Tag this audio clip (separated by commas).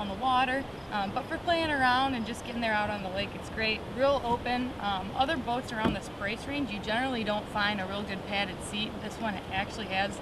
Speech